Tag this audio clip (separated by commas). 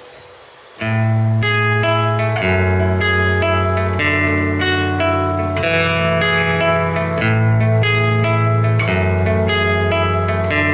Electric guitar, Guitar, Plucked string instrument, Music, Musical instrument